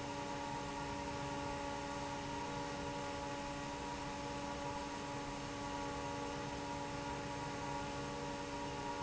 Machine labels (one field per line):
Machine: fan